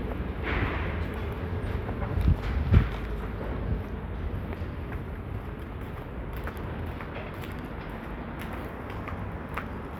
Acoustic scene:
residential area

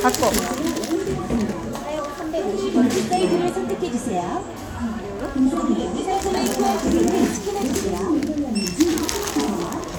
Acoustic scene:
crowded indoor space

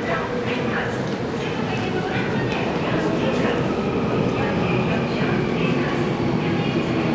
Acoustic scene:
subway station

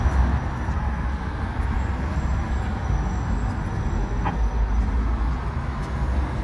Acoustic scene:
street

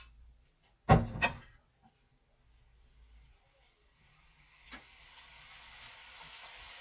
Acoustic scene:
kitchen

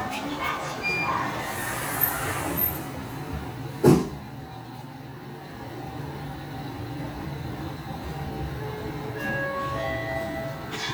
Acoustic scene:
elevator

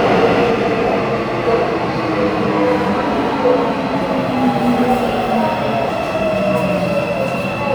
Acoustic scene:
subway station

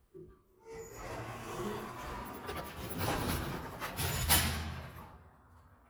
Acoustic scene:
elevator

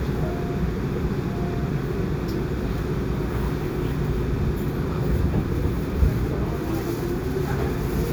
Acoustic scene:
subway train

